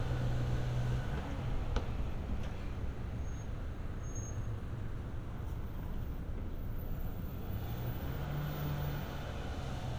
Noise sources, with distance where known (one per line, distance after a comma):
engine of unclear size